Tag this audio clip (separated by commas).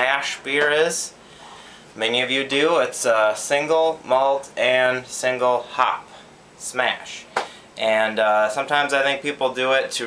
Speech